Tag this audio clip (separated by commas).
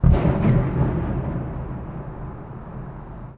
Fireworks, Explosion